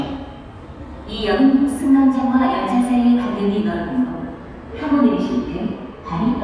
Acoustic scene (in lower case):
subway station